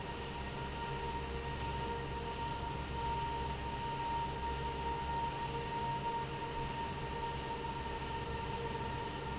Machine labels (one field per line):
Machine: fan